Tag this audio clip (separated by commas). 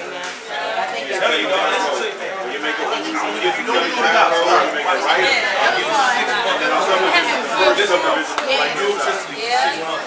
Speech